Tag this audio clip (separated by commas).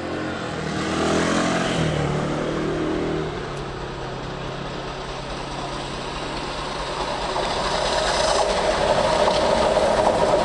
Train, Clickety-clack, Railroad car, Rail transport